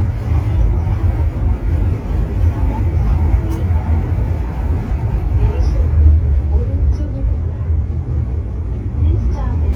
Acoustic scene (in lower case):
subway train